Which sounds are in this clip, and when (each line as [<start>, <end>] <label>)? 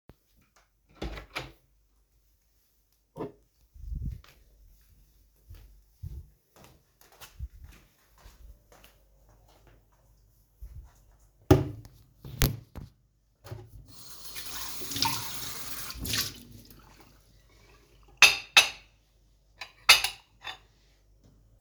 [0.81, 1.84] door
[3.05, 3.49] cutlery and dishes
[4.19, 11.20] footsteps
[11.33, 12.02] cutlery and dishes
[13.79, 16.92] running water
[18.03, 21.17] cutlery and dishes